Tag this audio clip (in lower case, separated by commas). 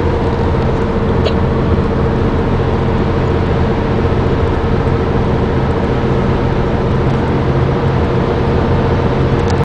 vehicle, motor vehicle (road)